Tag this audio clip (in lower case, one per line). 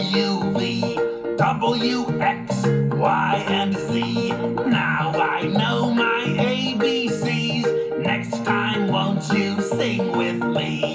music